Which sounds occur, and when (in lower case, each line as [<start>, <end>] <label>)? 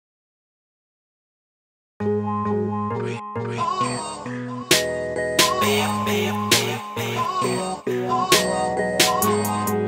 [1.97, 9.85] music
[5.56, 6.30] male singing
[6.49, 6.79] male singing
[6.96, 8.42] male singing